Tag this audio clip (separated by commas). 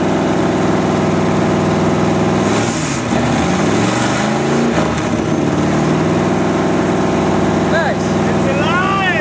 Speech